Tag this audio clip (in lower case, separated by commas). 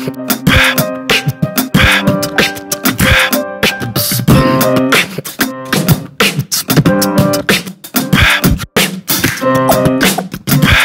music, beatboxing